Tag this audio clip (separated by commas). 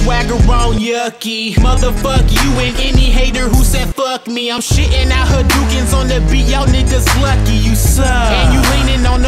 Music, Techno